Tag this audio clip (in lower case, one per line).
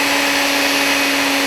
tools
power tool
drill